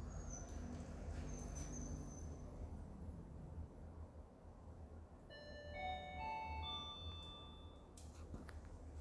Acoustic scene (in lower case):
elevator